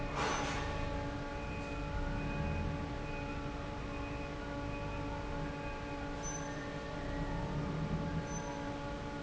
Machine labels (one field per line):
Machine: fan